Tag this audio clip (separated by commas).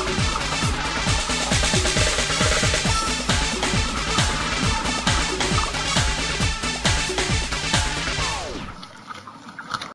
Music